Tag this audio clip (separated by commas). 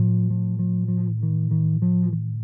Guitar, Music, Bass guitar, Plucked string instrument, Musical instrument